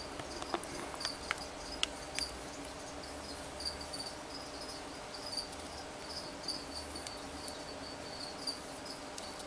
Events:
0.0s-9.4s: mechanisms
9.3s-9.4s: generic impact sounds

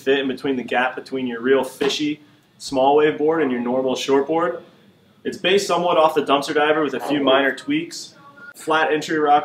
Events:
0.0s-2.2s: man speaking
0.0s-9.4s: mechanisms
1.8s-1.9s: generic impact sounds
2.2s-2.7s: surface contact
2.6s-4.7s: man speaking
5.3s-8.2s: man speaking
6.9s-7.4s: speech babble
7.5s-8.5s: speech babble
8.6s-9.4s: man speaking

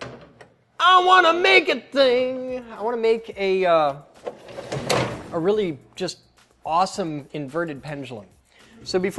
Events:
0.0s-0.4s: generic impact sounds
0.0s-9.1s: background noise
0.8s-1.8s: man speaking
1.9s-4.0s: man speaking
4.1s-5.2s: generic impact sounds
5.3s-5.8s: man speaking
5.7s-9.1s: music
6.0s-6.3s: man speaking
6.4s-6.5s: generic impact sounds
6.6s-8.3s: man speaking
8.4s-8.9s: breathing

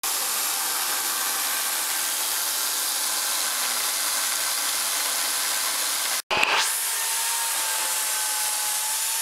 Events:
0.0s-6.2s: sawing
6.3s-9.2s: sawing

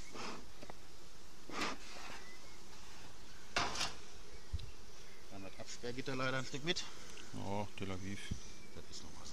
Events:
0.0s-0.5s: generic impact sounds
0.0s-9.3s: buzz
0.5s-0.7s: walk
1.4s-1.8s: generic impact sounds
1.8s-2.2s: steam
1.8s-2.2s: walk
2.1s-2.6s: bird call
3.5s-3.9s: generic impact sounds
4.2s-5.6s: bird call
4.5s-4.7s: generic impact sounds
5.2s-6.9s: male speech
7.2s-8.3s: male speech
8.1s-8.4s: generic impact sounds
8.4s-8.8s: bird call
9.1s-9.1s: male speech

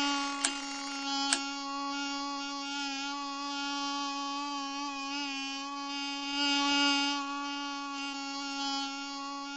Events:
0.0s-9.5s: buzz
1.3s-1.4s: tick

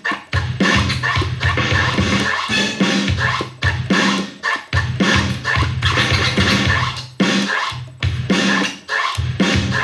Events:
0.0s-9.8s: music

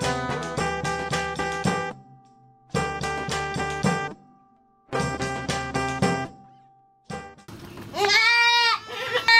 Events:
0.0s-7.5s: music
7.5s-7.9s: bird call
7.5s-9.3s: mechanisms
7.9s-9.3s: bleat
8.0s-8.1s: tick

